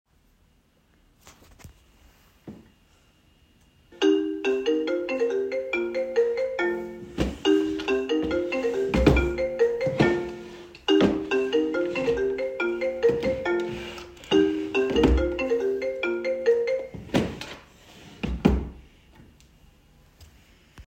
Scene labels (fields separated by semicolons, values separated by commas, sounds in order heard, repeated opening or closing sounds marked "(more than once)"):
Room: bedroom; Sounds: phone ringing, wardrobe or drawer